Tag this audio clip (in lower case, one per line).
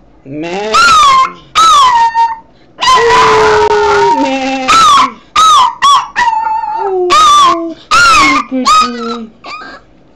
speech
domestic animals
animal